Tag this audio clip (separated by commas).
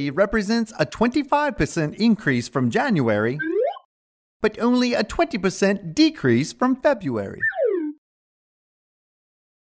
Speech